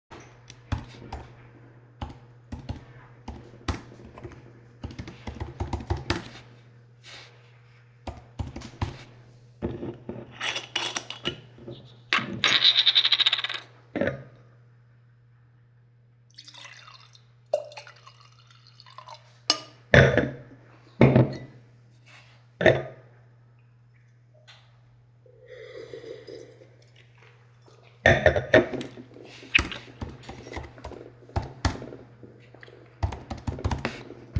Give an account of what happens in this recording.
I type on my notebook keyboard, I open a bottle, I put the cap down, I pour my drink, put the bottle down, take my cup, I slurp, I continue typing